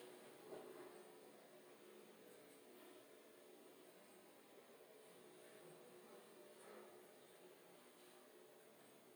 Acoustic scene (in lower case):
elevator